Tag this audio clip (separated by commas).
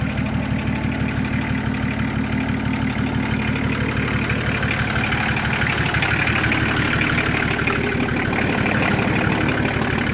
Walk